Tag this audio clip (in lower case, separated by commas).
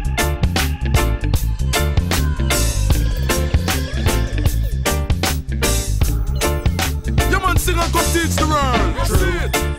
music